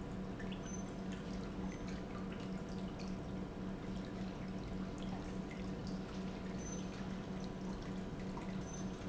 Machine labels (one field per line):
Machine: pump